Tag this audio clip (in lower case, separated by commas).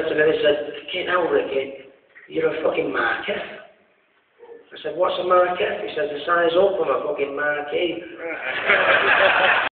speech, male speech